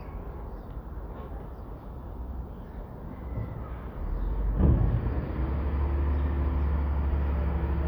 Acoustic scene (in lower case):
residential area